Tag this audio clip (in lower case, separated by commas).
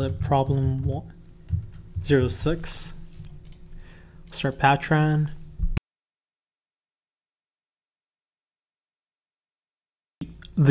speech